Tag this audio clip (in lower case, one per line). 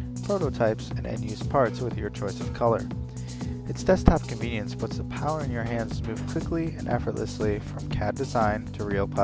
speech
music